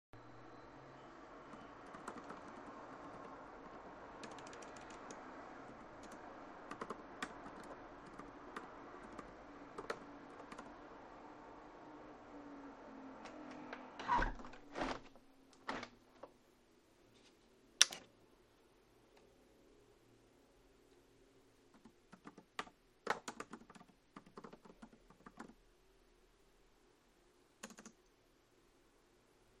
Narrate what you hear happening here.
I was sitting in front of the tilted window to the street, typing on the keyboard of my laptop. Then I stretched a little to close the window completely. Then I switched on the lamp on my desk. I read the last sentence I had written and started typing again.